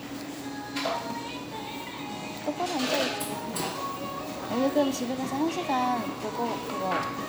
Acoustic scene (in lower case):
cafe